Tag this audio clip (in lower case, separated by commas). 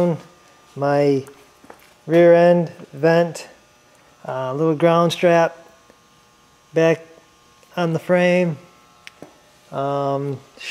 speech, silence, inside a small room